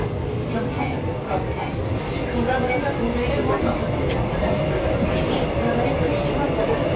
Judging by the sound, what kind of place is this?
subway train